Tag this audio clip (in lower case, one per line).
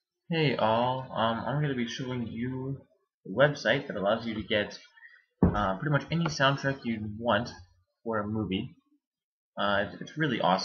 speech